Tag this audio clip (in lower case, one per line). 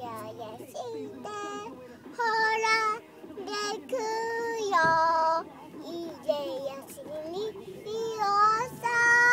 child singing